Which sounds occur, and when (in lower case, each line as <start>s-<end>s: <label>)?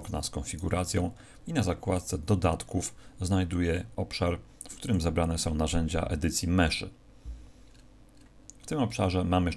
0.0s-1.1s: man speaking
0.0s-9.5s: mechanisms
0.5s-0.6s: clicking
1.1s-1.4s: breathing
1.4s-2.9s: man speaking
2.9s-3.1s: breathing
3.2s-4.4s: man speaking
4.6s-6.9s: man speaking
7.6s-7.9s: generic impact sounds
8.1s-8.3s: generic impact sounds
8.4s-8.6s: clicking
8.7s-9.5s: man speaking